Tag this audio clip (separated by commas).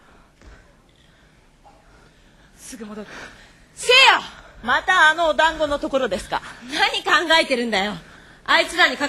Speech